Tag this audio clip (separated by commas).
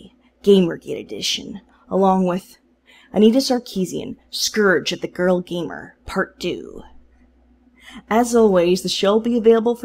Speech